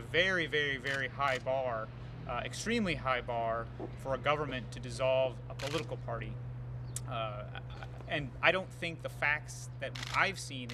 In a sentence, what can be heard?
Man giving a speech with cameras taking pictures